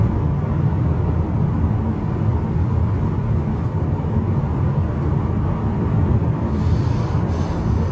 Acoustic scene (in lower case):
car